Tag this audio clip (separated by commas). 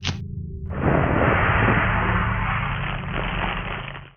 Fire